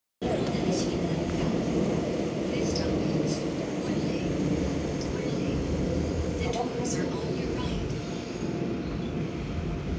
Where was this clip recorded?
on a subway train